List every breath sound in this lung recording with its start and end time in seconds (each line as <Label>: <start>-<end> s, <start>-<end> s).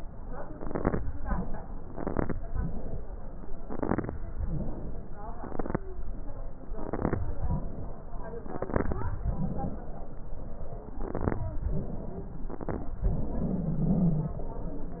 Inhalation: 0.00-0.49 s, 1.00-1.81 s, 2.37-3.58 s, 4.16-5.37 s, 7.24-8.44 s, 9.21-10.93 s, 11.50-12.43 s, 13.05-15.00 s
Exhalation: 0.53-0.93 s, 1.92-2.32 s, 3.69-4.08 s, 5.40-5.79 s, 6.80-7.20 s, 8.59-9.10 s, 10.98-11.40 s, 12.50-12.92 s
Stridor: 13.23-14.38 s
Crackles: 0.53-0.93 s, 1.92-2.32 s, 3.69-4.08 s, 5.40-5.79 s, 6.80-7.20 s, 8.59-9.10 s, 10.98-11.40 s, 12.50-12.92 s